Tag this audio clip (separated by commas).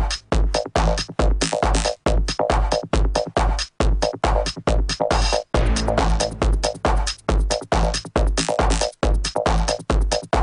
Music